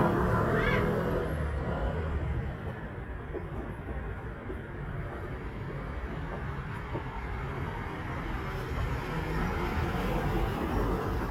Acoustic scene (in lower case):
street